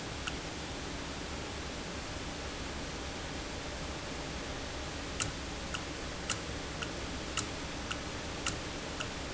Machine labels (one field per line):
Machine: valve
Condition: normal